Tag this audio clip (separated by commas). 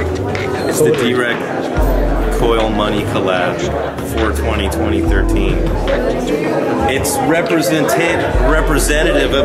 Speech